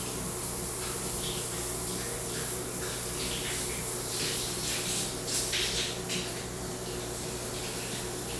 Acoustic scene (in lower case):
restroom